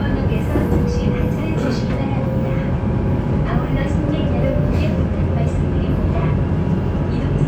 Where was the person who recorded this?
on a subway train